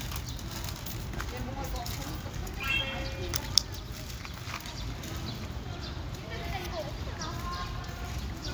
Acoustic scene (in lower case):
park